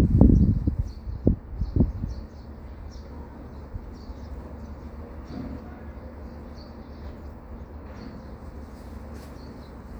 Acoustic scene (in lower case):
residential area